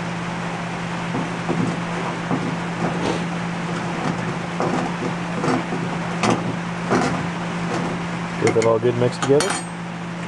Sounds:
inside a small room
speech

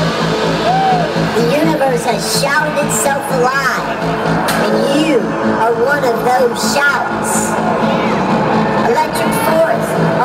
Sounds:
music
speech

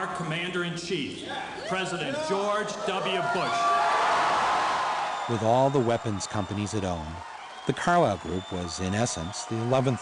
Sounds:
man speaking

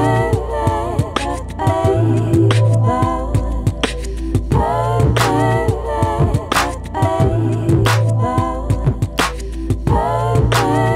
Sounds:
rhythm and blues
music
beatboxing
soul music

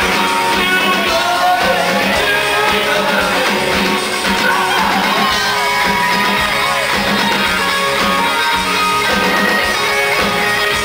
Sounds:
music
outside, urban or man-made

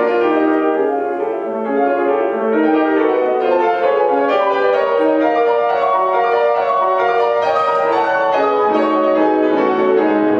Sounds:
music

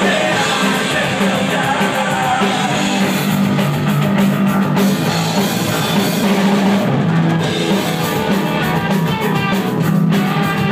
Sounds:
drum kit
punk rock
music
drum
singing
musical instrument

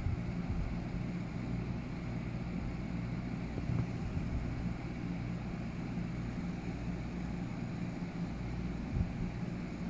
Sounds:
inside a small room
rustle

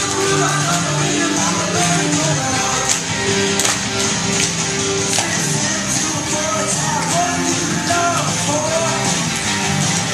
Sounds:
music

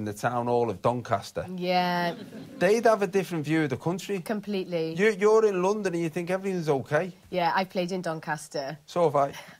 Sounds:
speech
conversation

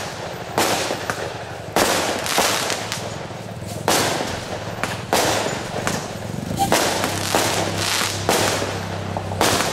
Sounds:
burst
explosion

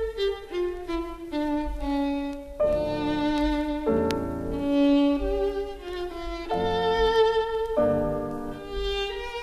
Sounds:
fiddle
music
musical instrument

